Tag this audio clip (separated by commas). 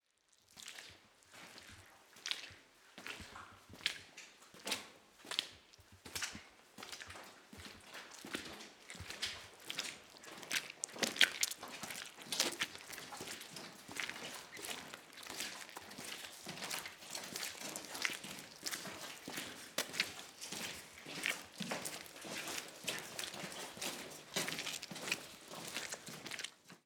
splatter, Liquid, Walk